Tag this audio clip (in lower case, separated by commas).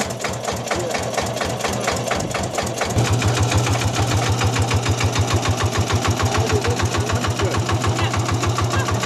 speech